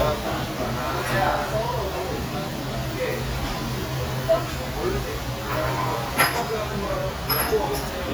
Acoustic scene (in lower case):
restaurant